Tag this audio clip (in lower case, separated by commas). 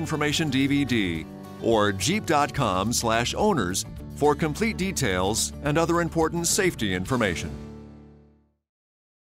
music, speech